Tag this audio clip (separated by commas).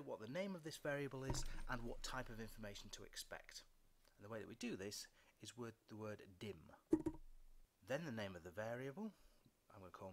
Speech